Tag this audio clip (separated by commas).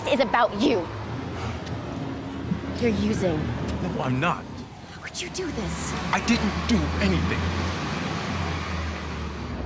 Speech